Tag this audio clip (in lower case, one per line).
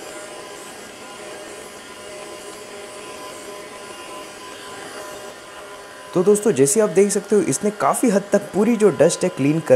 vacuum cleaner cleaning floors